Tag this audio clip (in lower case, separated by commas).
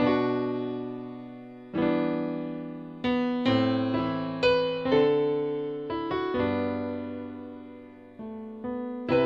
music